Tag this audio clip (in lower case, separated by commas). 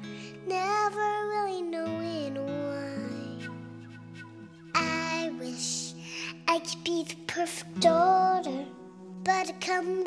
child singing